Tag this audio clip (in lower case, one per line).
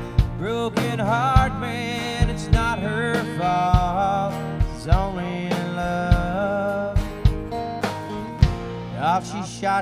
music